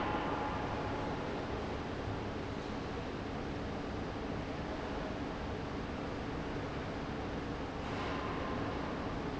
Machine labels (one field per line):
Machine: fan